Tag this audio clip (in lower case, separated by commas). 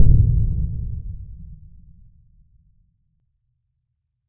explosion, boom